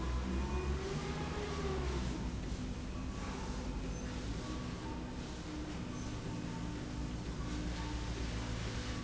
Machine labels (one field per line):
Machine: slide rail